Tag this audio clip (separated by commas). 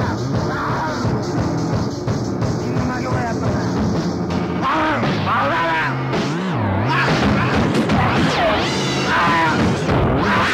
Music, Speech